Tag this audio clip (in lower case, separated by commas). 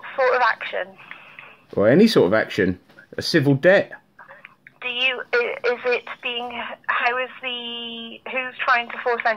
speech